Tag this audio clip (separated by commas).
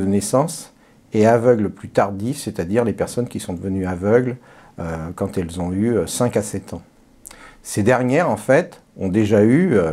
Speech